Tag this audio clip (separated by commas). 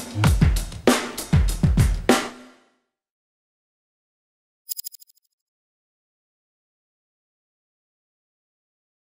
Music